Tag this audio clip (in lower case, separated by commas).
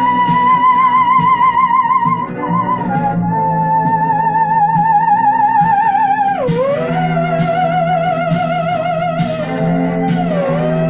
playing theremin